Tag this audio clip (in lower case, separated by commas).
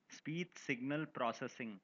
human voice, speech, man speaking